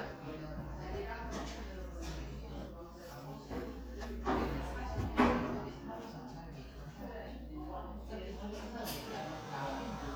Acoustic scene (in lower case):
crowded indoor space